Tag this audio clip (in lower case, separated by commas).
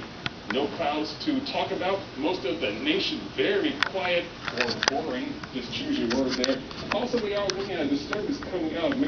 speech